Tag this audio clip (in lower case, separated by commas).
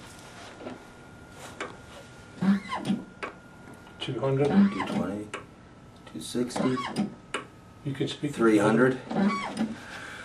speech